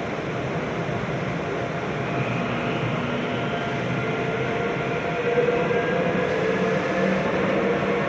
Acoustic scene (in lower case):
subway train